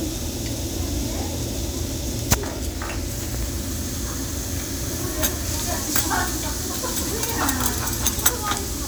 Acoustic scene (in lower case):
restaurant